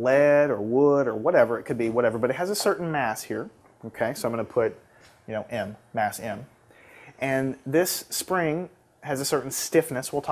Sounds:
speech

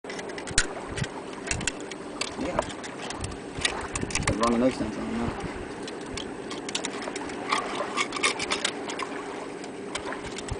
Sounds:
speech

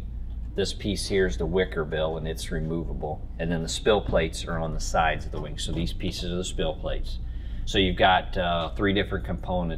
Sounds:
speech

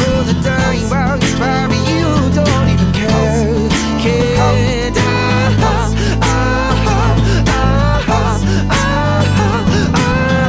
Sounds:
music
independent music

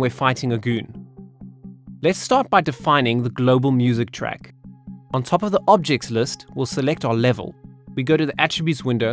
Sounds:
speech
music

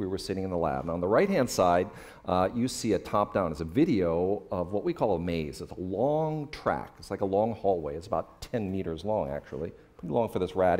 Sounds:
speech

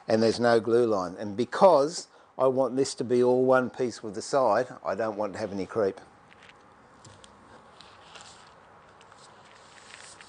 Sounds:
speech
inside a small room

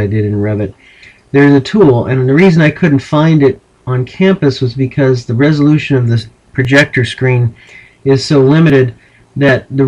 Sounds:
speech

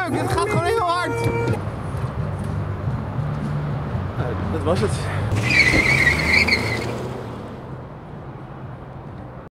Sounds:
speech

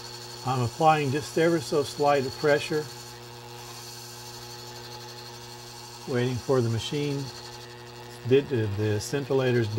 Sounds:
speech

